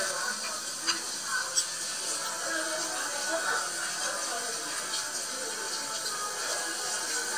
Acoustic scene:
restaurant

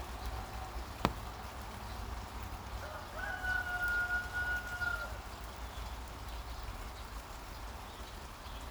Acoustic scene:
park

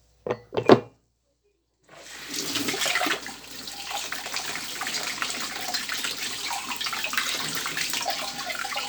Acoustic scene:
kitchen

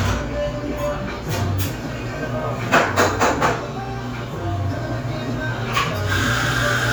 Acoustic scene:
cafe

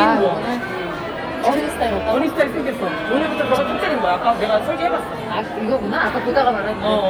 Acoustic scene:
crowded indoor space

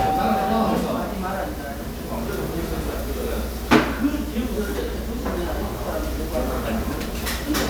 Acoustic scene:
restaurant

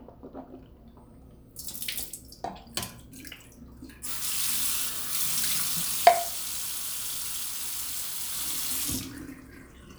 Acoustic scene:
restroom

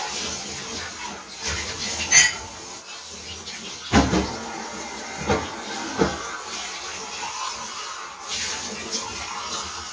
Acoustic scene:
kitchen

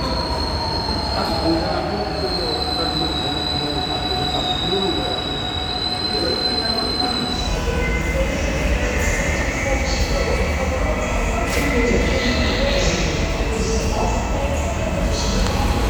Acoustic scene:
subway station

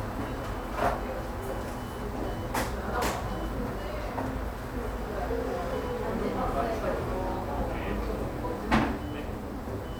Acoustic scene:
cafe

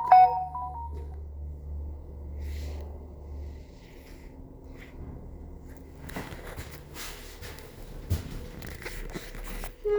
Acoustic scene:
elevator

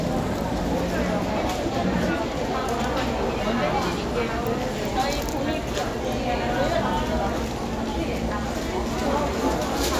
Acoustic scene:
crowded indoor space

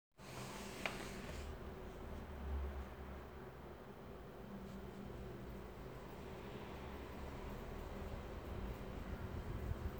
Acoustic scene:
elevator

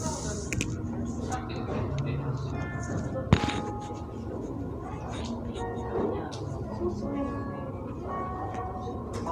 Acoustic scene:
cafe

